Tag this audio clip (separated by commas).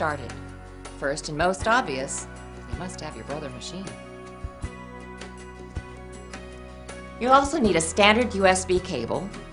Speech, Music